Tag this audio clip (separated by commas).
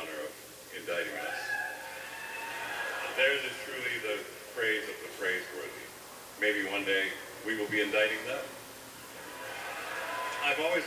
Speech